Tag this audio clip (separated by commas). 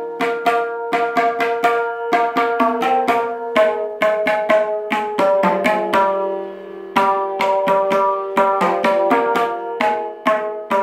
playing tabla